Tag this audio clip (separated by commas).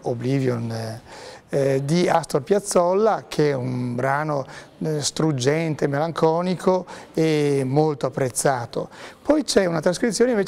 Speech